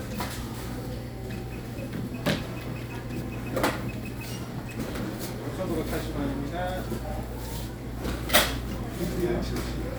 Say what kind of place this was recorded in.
crowded indoor space